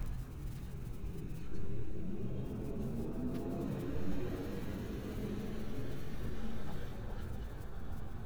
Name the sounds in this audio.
engine of unclear size